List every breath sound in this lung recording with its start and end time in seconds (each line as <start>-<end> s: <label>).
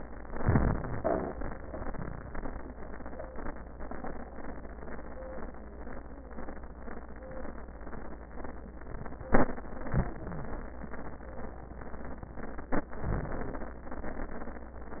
0.31-0.96 s: inhalation
0.31-0.96 s: crackles
0.96-1.33 s: exhalation
9.86-10.71 s: inhalation
10.31-10.59 s: wheeze
12.98-13.83 s: inhalation